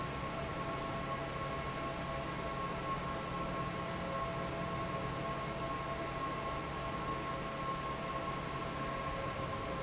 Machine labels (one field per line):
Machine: fan